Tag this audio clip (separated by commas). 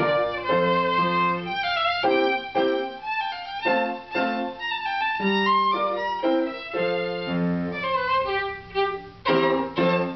Violin, Musical instrument, Music